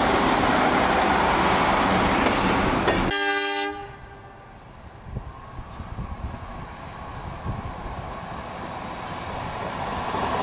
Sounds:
Train

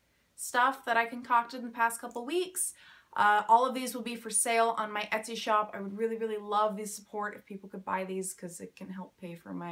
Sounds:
Speech

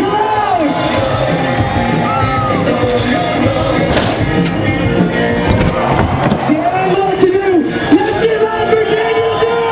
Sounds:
Speech, Music

